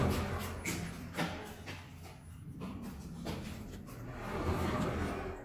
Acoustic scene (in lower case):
elevator